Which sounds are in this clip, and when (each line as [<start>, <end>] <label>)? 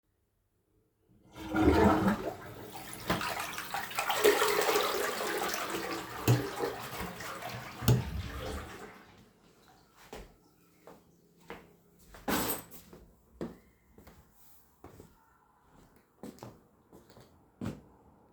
[1.27, 9.04] toilet flushing
[6.18, 8.15] light switch
[9.32, 18.32] footsteps
[12.22, 12.99] light switch